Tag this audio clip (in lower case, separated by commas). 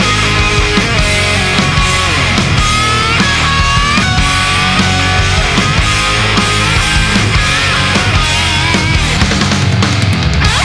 musical instrument, plucked string instrument, electric guitar, guitar, music, acoustic guitar